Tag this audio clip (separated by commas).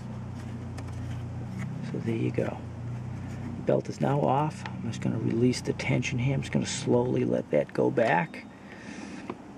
Vehicle